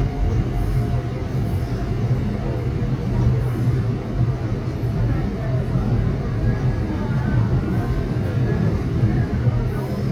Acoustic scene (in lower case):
subway train